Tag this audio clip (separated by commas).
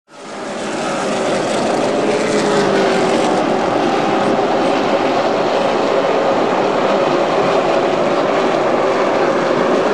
auto racing, Vehicle, outside, urban or man-made